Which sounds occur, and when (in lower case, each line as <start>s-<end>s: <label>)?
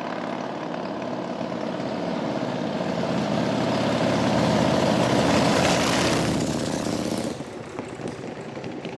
0.0s-8.9s: medium engine (mid frequency)
0.0s-8.9s: motorcycle